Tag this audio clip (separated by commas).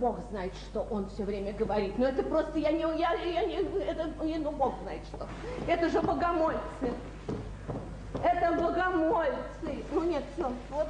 Speech, Female speech